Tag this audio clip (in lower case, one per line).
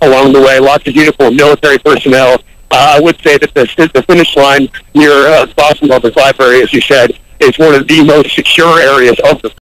speech